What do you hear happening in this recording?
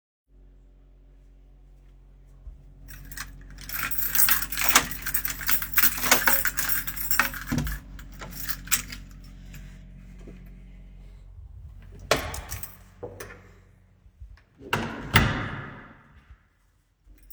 I pick up my key. I unlock and open my door. I leave my flat. I close the door. Carrying recording device in my hand. In background ventilator is running.